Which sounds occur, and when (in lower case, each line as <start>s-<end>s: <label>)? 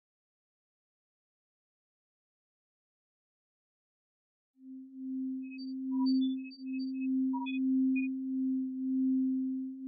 2.4s-9.8s: sine wave
3.2s-3.6s: bleep
3.7s-4.9s: bleep
5.2s-5.4s: bleep
5.8s-5.9s: bleep